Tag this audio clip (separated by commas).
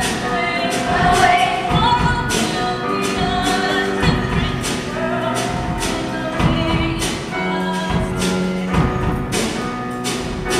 Lullaby, Music